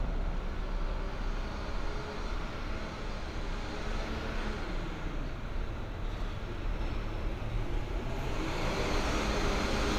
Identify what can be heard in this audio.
medium-sounding engine, large-sounding engine